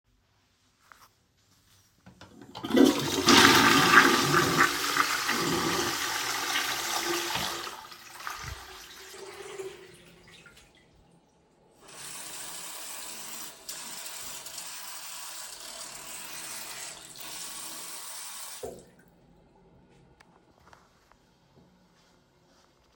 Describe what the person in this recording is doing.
I flushed the toilet and then washed my hands at the sink.